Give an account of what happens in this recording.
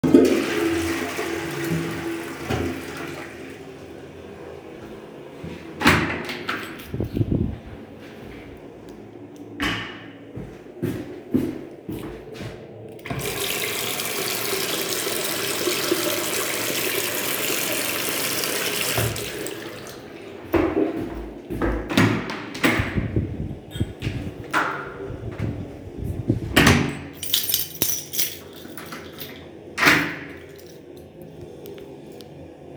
after flushing the toilet I open it door and closed it went to the sink and washed my hands and open my house door and I closed it with the lock using keys